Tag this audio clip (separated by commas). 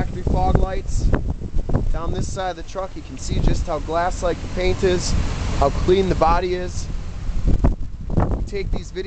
Speech, Vehicle